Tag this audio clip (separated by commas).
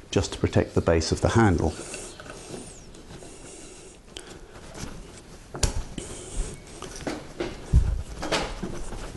Speech